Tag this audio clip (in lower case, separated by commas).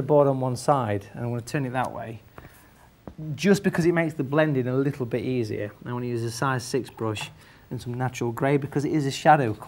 speech